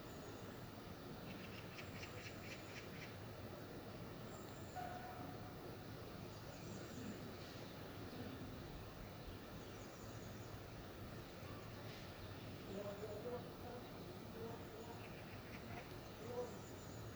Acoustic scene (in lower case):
park